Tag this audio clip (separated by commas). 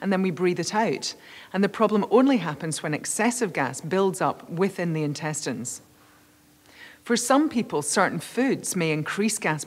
Speech